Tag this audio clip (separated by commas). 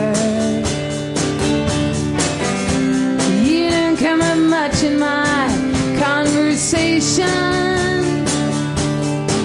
Music